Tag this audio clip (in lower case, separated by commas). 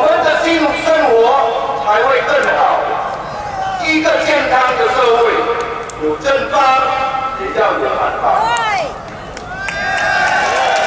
narration, speech, man speaking